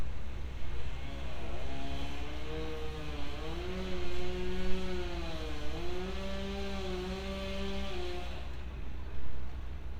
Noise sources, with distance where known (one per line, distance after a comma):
unidentified powered saw, far